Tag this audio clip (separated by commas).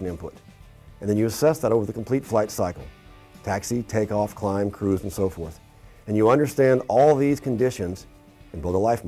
Music, Speech